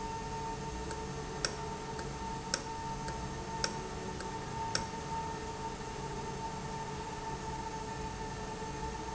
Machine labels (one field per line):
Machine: valve